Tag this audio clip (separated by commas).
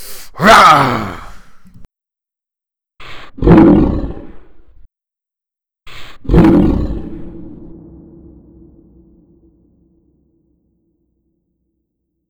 Animal